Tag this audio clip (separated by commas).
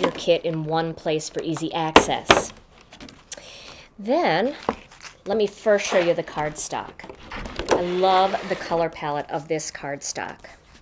Speech